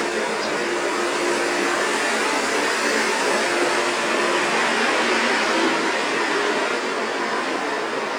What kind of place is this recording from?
street